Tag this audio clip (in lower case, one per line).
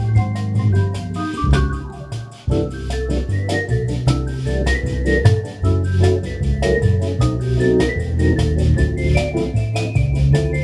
playing hammond organ